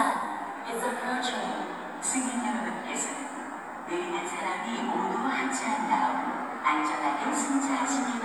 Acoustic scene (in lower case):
subway station